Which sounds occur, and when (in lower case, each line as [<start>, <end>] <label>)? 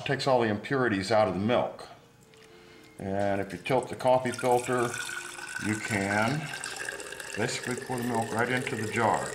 [0.01, 9.34] background noise
[0.03, 1.96] male speech
[2.88, 4.98] male speech
[3.99, 9.34] pour
[5.22, 6.53] male speech
[7.35, 9.32] male speech